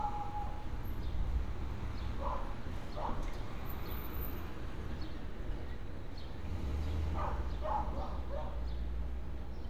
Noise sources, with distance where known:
dog barking or whining

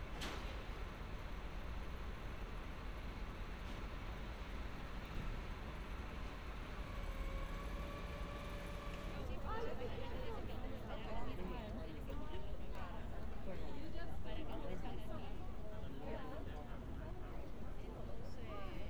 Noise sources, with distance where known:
background noise

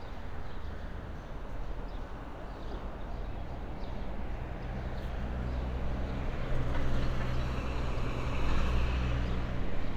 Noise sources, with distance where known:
large-sounding engine

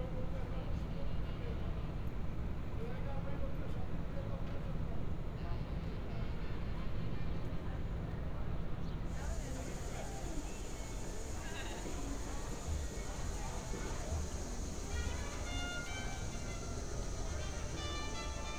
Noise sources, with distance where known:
music from a fixed source; person or small group talking

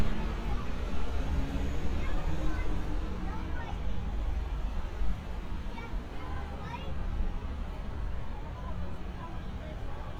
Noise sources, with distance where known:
large-sounding engine; person or small group talking, near

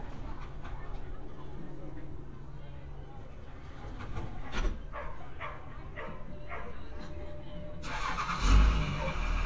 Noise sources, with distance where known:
medium-sounding engine, near; unidentified human voice; dog barking or whining, near

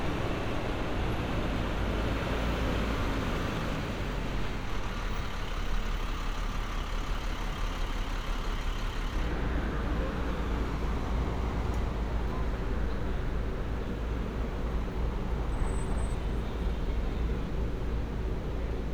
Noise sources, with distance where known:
medium-sounding engine

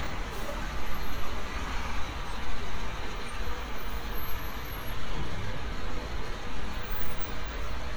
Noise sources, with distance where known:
large-sounding engine, near

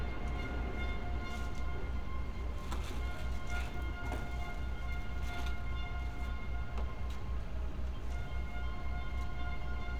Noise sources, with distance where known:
music from a fixed source

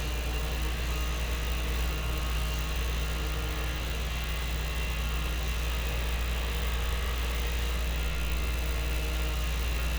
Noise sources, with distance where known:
unidentified powered saw

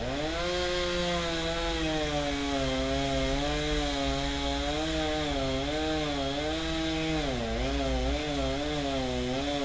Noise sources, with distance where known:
unidentified powered saw, near

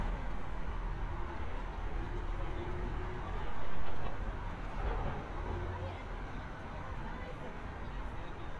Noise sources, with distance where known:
person or small group talking, far

